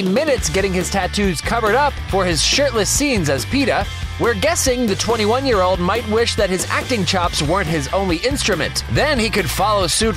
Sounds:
speech
music

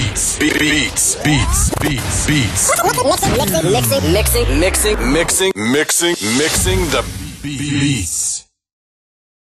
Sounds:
music
speech

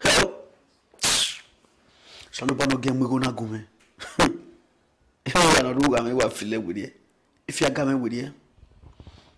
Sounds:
speech

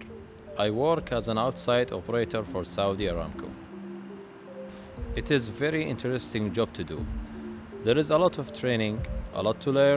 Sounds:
music
speech

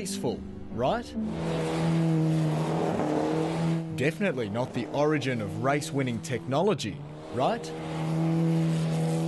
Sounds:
speech
vehicle

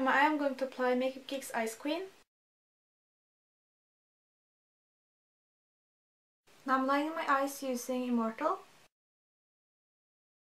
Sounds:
speech

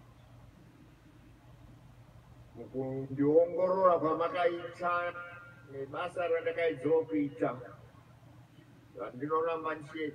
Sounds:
speech
man speaking

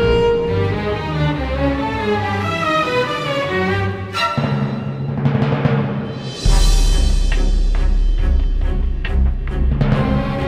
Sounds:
timpani
music
background music

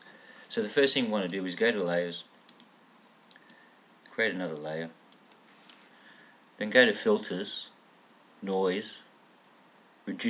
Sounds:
speech

